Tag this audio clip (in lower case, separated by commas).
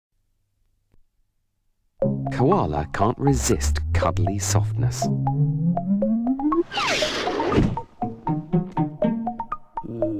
speech, music